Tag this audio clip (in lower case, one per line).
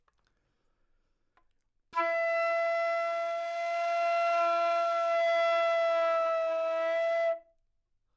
musical instrument
wind instrument
music